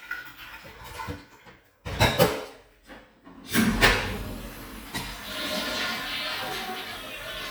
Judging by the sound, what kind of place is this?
restroom